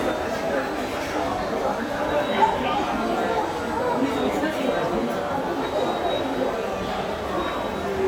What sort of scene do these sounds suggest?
subway station